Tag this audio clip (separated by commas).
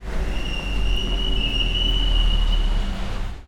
Motor vehicle (road), Car, Vehicle